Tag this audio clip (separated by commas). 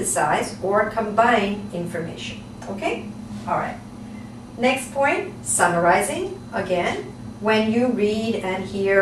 Speech, inside a small room